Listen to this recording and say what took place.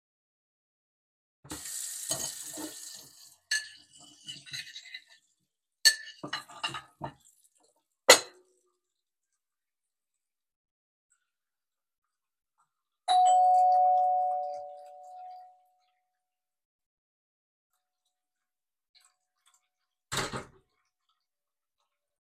I washed the dishes, heard doorbell and opened the door.